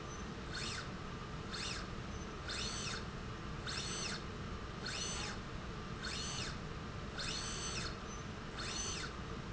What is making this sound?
slide rail